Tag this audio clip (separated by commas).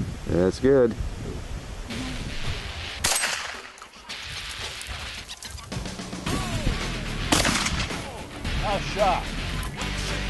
outside, rural or natural, Speech, Music